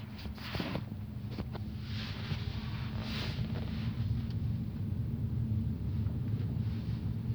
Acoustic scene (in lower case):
car